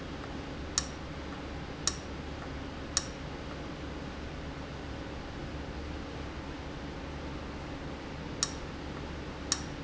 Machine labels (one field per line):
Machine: valve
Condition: abnormal